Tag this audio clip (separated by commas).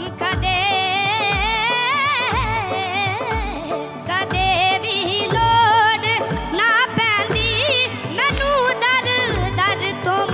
child singing